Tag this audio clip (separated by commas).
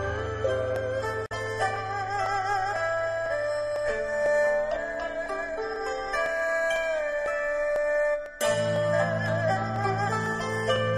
Music